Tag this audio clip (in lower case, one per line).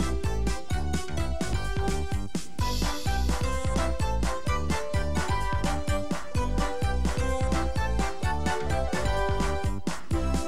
music